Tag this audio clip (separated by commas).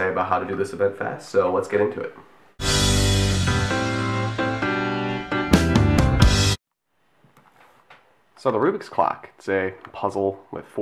Music, Speech